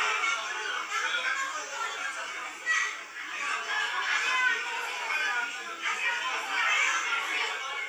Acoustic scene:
crowded indoor space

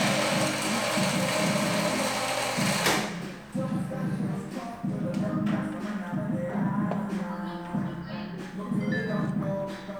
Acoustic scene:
cafe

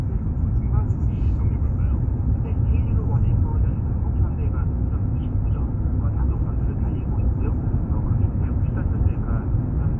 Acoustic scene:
car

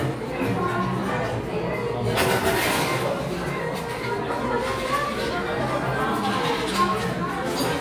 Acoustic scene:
crowded indoor space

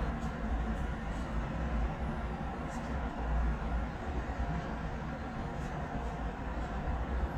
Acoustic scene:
residential area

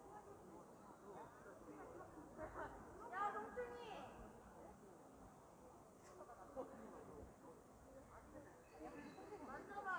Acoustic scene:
park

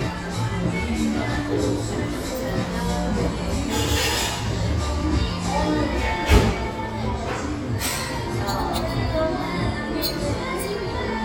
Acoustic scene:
cafe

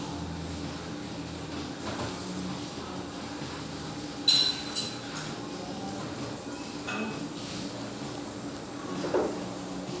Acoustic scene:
restaurant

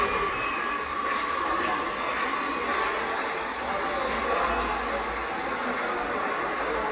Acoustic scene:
subway station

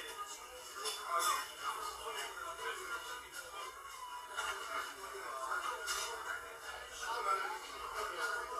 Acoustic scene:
crowded indoor space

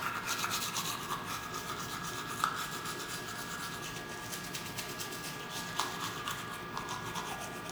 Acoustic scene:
restroom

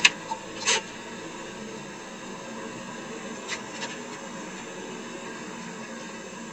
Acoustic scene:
car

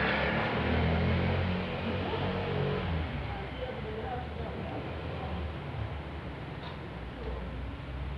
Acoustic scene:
residential area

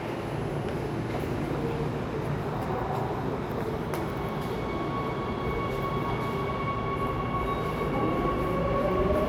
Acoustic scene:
subway station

